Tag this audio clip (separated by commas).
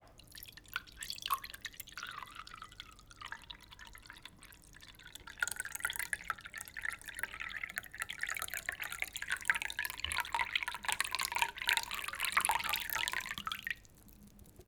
Liquid